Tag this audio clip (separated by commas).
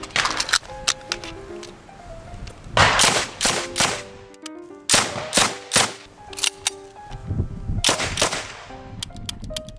machine gun shooting